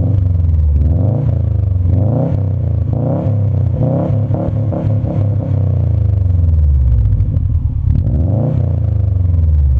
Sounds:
accelerating
car
vehicle

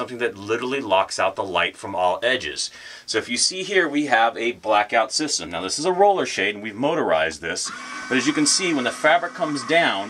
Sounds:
speech

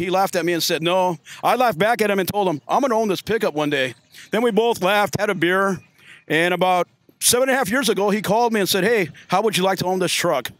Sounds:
speech

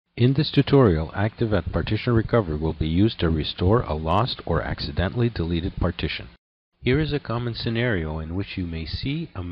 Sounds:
speech
speech synthesizer

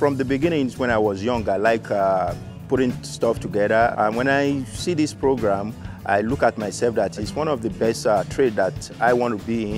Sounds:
speech
music

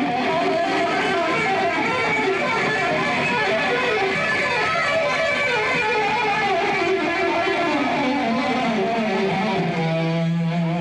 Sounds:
electric guitar
music
musical instrument
guitar

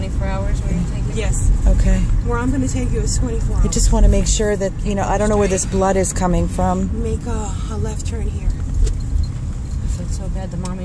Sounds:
vehicle
speech
car

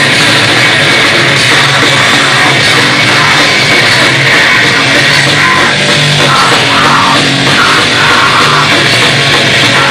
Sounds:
music
heavy metal
drum
rock music

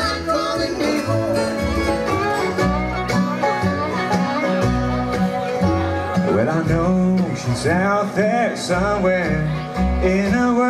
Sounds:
bluegrass
plucked string instrument
music
musical instrument

